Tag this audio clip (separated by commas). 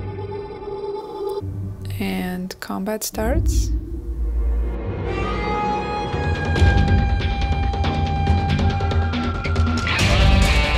Speech, Music